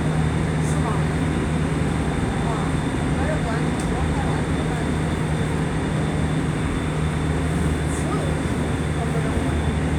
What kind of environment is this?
subway train